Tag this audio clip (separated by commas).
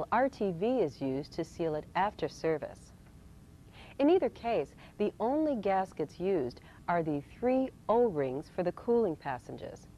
Speech